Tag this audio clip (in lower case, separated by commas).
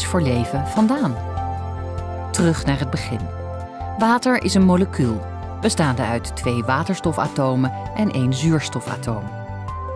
speech, music